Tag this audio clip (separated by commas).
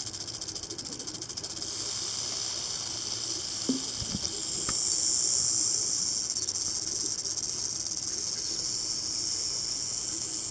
snake rattling